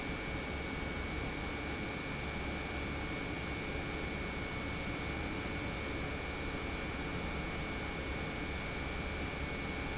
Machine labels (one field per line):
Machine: pump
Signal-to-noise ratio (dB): -6 dB